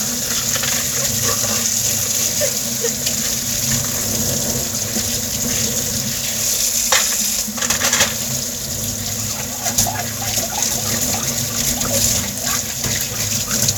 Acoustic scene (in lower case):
kitchen